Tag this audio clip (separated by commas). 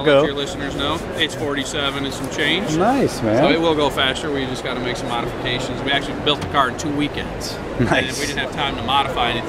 Speech